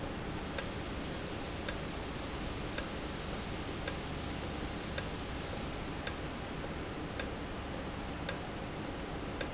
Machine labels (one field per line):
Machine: valve